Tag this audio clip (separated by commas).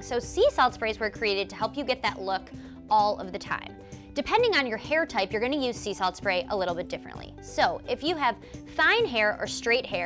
Speech, Music